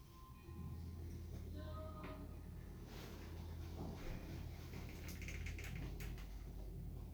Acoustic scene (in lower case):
elevator